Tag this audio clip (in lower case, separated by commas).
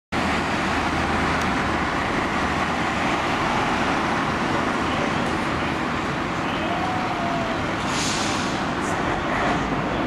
fire truck siren